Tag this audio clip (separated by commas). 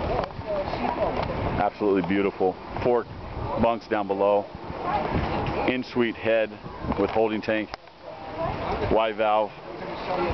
Speech, Sailboat